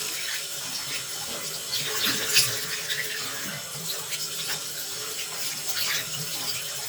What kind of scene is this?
restroom